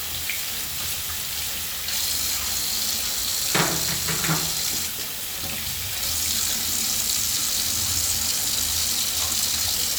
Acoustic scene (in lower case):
restroom